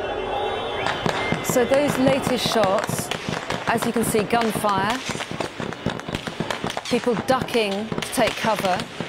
A woman speaks over crowds yelling and a multitude of gunshots